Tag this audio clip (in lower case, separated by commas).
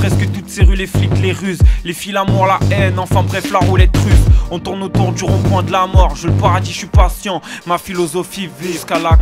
music